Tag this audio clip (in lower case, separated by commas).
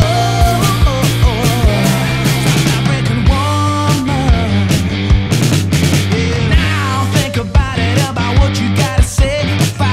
grunge, music